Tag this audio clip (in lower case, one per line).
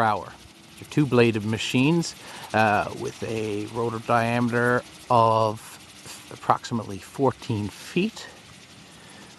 speech